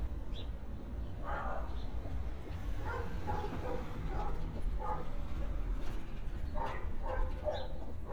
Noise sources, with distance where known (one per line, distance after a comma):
dog barking or whining, far